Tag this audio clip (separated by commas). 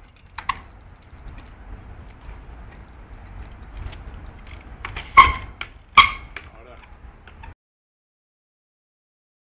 Speech